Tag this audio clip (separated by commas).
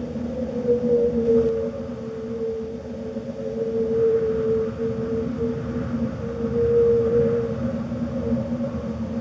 Rustling leaves